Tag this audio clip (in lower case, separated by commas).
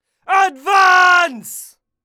shout, human voice